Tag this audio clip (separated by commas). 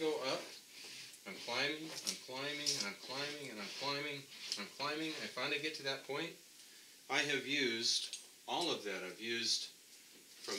Speech, inside a small room